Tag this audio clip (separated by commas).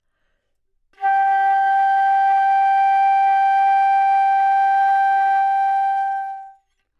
Wind instrument, Music, Musical instrument